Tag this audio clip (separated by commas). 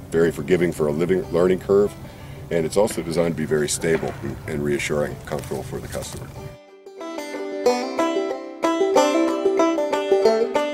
Music, Speech